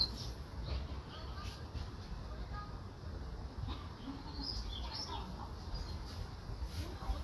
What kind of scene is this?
park